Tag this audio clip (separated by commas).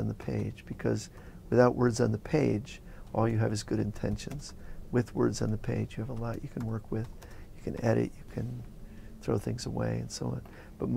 Speech